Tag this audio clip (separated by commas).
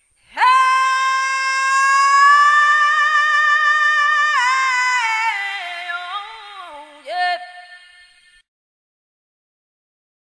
Female singing